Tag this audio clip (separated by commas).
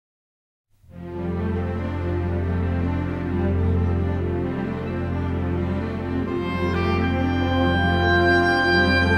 Background music, Theme music, Music